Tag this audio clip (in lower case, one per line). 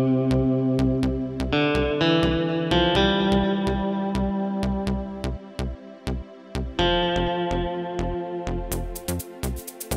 music
musical instrument
plucked string instrument
guitar